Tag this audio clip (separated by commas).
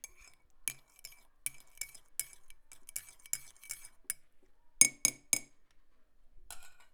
Liquid, home sounds, dishes, pots and pans